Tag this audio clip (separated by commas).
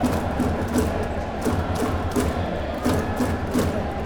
Human group actions, Crowd